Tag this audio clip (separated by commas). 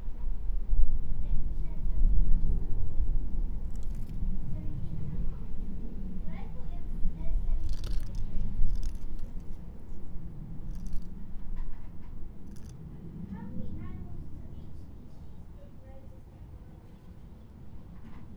Wind, Speech, kid speaking, Human voice